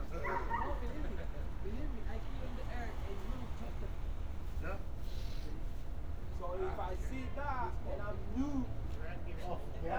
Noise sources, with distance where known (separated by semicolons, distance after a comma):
person or small group talking; dog barking or whining, far